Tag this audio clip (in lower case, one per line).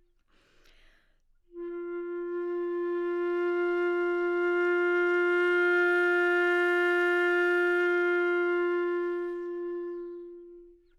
musical instrument
woodwind instrument
music